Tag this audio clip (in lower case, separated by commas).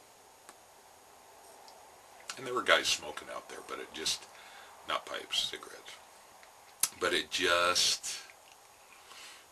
speech, inside a large room or hall